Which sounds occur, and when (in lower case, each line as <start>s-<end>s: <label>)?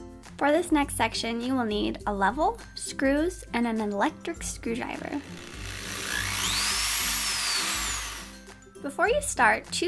0.0s-9.8s: music
0.4s-2.5s: woman speaking
2.9s-3.3s: woman speaking
3.5s-4.2s: woman speaking
4.2s-5.2s: woman speaking
5.3s-8.3s: drill
8.8s-9.3s: woman speaking
9.4s-9.8s: woman speaking